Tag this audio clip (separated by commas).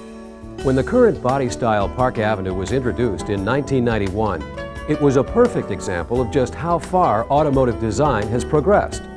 Music, Speech